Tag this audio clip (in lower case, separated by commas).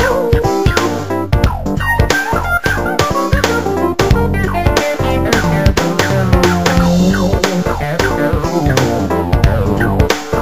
synthesizer, music